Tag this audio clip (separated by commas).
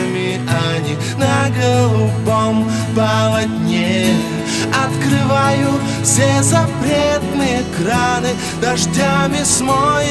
Music